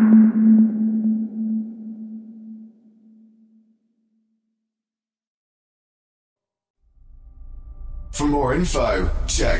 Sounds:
speech
music

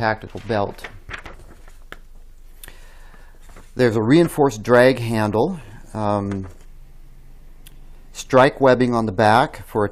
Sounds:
speech

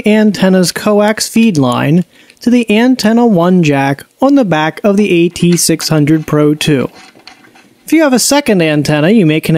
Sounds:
speech

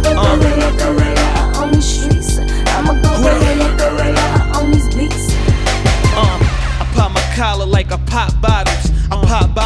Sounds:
music

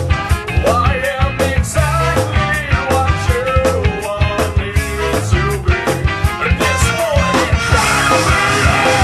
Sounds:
music

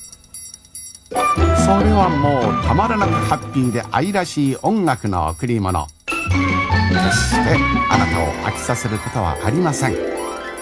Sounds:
musical instrument
speech
music

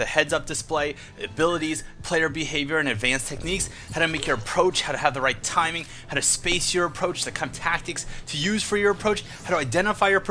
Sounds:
speech

